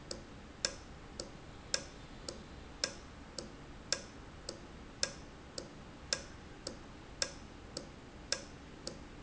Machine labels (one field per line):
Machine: valve